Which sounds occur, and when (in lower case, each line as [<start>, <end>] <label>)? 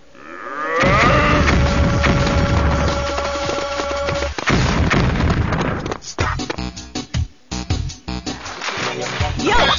[0.00, 9.75] background noise
[0.00, 9.75] video game sound
[0.14, 1.50] groan
[0.74, 4.29] music
[0.83, 2.99] generic impact sounds
[2.85, 4.29] sound effect
[4.41, 5.92] explosion
[5.90, 7.25] music
[7.49, 9.75] music
[9.41, 9.75] female speech